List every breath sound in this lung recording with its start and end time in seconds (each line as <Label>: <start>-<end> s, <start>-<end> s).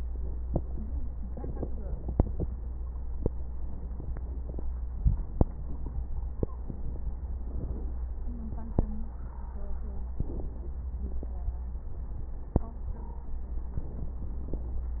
Inhalation: 1.07-2.93 s, 6.52-8.20 s, 10.18-11.73 s, 13.74-15.00 s
Exhalation: 0.00-1.05 s, 2.95-4.81 s, 4.83-6.51 s, 8.22-10.16 s, 11.74-13.75 s
Crackles: 0.00-1.05 s, 1.07-2.93 s, 2.95-4.81 s, 4.83-6.48 s, 6.52-8.20 s, 8.22-10.16 s, 10.18-11.73 s, 11.74-13.75 s, 13.78-15.00 s